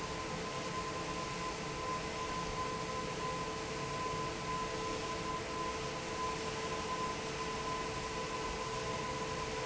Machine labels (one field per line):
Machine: fan